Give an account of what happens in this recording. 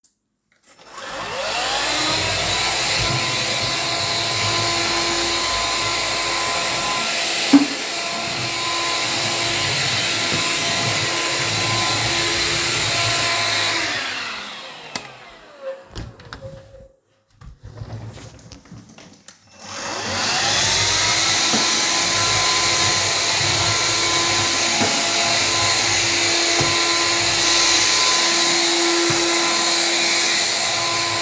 I started the vacuum cleaner, cleaned in the living_room, stopped the vaccuum cleaner and opended the door to the hallway. Started cleaning again